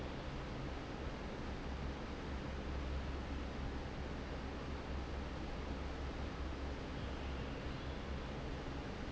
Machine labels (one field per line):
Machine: fan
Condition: normal